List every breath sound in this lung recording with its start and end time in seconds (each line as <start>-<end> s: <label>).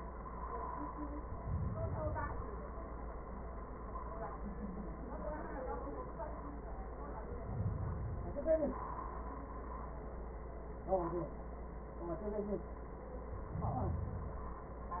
1.34-2.84 s: inhalation
7.11-8.45 s: inhalation
13.29-14.72 s: inhalation